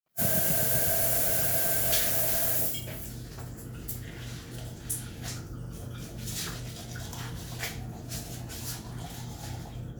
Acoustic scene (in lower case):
restroom